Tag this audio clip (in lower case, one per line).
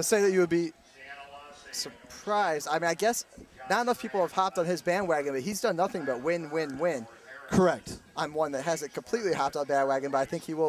outside, urban or man-made
speech